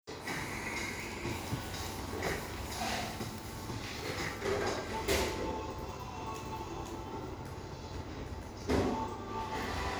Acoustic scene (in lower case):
cafe